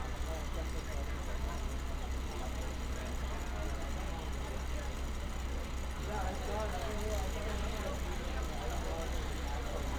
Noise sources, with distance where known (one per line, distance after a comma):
person or small group talking